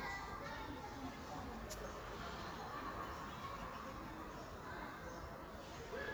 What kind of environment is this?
park